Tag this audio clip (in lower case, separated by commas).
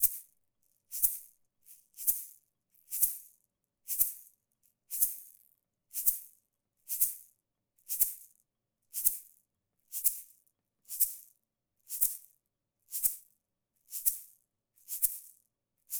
music, percussion, rattle (instrument), musical instrument